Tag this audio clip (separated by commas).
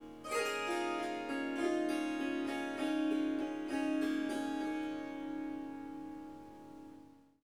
Music, Harp, Musical instrument